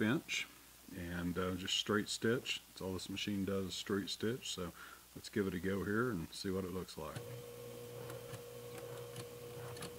An older man's speech followed by a sewing machine operating